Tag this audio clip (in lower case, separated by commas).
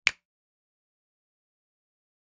finger snapping, hands